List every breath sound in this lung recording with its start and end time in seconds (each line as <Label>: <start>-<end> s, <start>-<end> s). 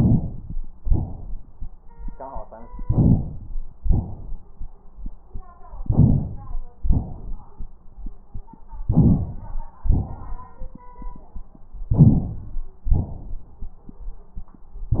Inhalation: 2.83-3.57 s, 5.83-6.57 s, 8.88-9.62 s, 11.90-12.60 s
Exhalation: 0.82-1.56 s, 3.85-4.59 s, 6.83-7.57 s, 9.87-10.57 s, 12.92-13.61 s